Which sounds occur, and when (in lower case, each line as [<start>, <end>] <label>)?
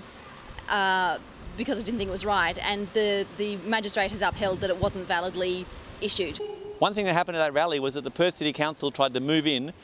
[0.00, 9.83] background noise
[0.65, 1.25] woman speaking
[1.56, 5.62] woman speaking
[4.09, 5.04] wind noise (microphone)
[5.95, 6.46] woman speaking
[6.38, 6.82] alarm
[6.81, 9.68] male speech